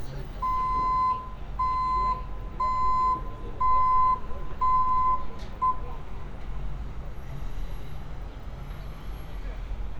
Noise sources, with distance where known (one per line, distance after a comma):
reverse beeper, near